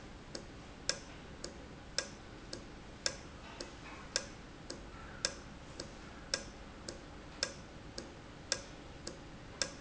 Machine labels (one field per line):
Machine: valve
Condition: normal